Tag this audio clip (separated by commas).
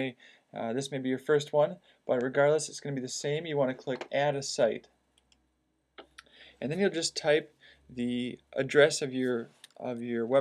Speech